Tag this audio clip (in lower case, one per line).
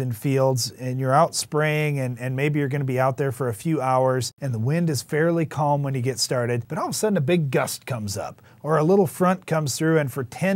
speech